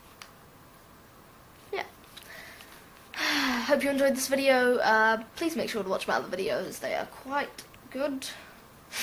A young boy is speaking and inhales air and laughs